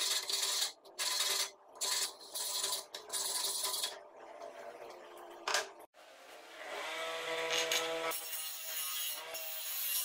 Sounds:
electric grinder grinding

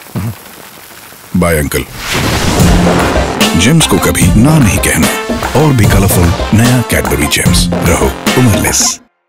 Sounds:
speech
rain on surface
music

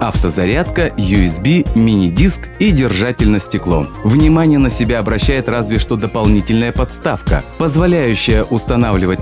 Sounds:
speech
music

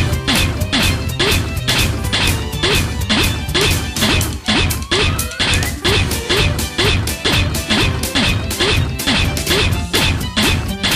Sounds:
video game music

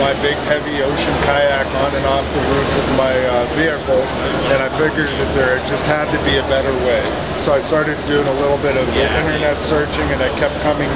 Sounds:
speech

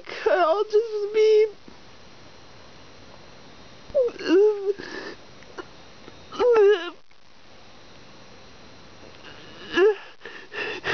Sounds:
speech

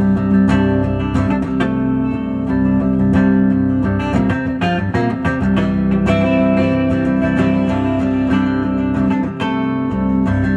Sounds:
strum
plucked string instrument
guitar
musical instrument
acoustic guitar
music

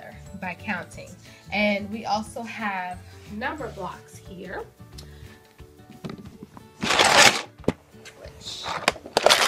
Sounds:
music
speech

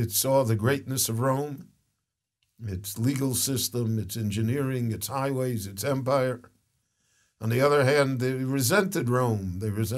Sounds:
speech

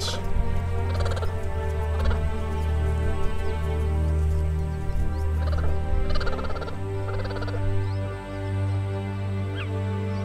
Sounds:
cheetah chirrup

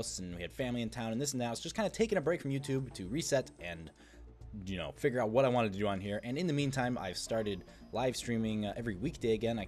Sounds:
music
speech

